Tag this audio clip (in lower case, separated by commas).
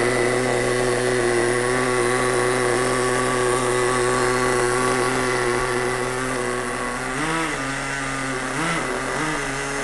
vroom, vehicle